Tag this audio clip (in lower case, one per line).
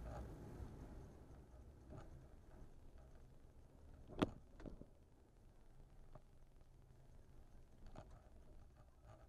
vehicle
car
motor vehicle (road)